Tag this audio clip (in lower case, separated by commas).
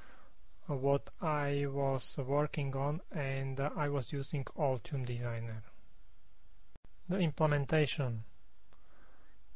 speech